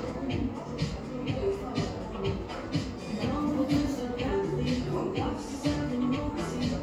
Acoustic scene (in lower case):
cafe